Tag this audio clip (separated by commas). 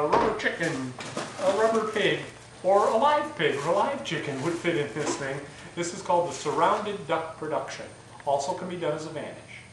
Speech